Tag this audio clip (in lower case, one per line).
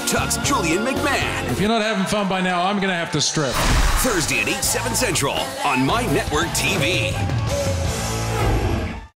music
speech
soundtrack music